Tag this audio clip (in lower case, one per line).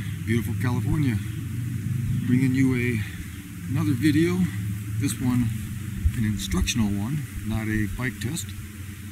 speech